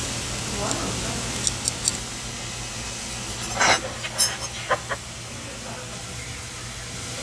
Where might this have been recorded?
in a restaurant